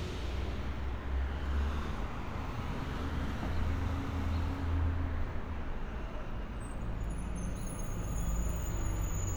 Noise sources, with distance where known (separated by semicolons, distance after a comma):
large-sounding engine, near